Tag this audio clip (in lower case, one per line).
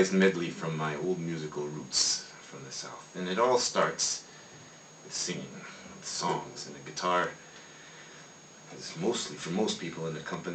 speech